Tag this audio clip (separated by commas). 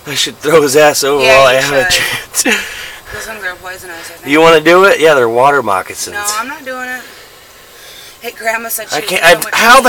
Speech